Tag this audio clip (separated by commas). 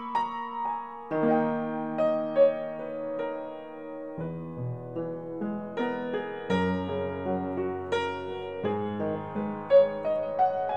Musical instrument, Violin, Music